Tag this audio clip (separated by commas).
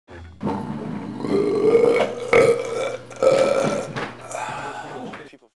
Speech, Burping